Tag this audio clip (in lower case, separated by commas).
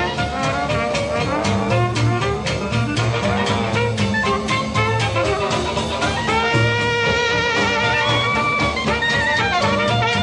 music, swing music